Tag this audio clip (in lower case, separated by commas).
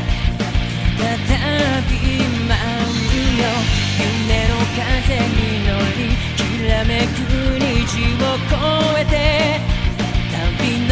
music